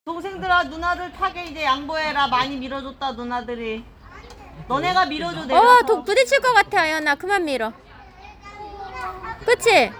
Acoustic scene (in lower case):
park